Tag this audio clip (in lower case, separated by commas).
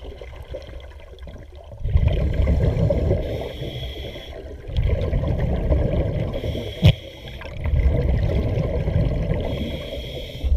scuba diving